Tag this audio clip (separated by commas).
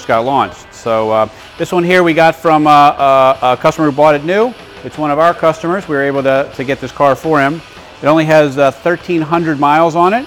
Speech, Music